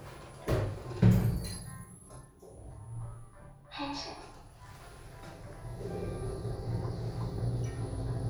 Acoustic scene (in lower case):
elevator